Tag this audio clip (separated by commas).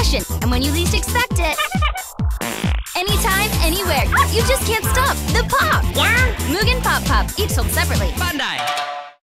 Music, Speech